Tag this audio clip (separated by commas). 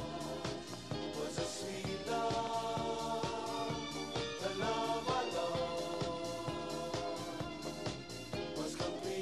Music